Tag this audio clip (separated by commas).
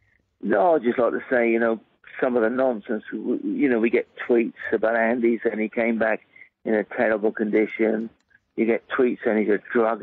Speech, Radio